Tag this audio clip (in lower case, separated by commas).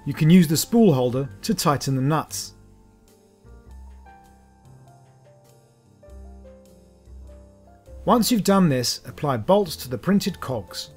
music, speech